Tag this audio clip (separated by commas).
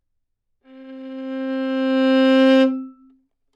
Bowed string instrument, Music, Musical instrument